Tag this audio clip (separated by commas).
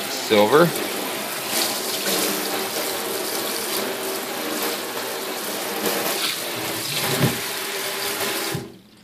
Speech, Gush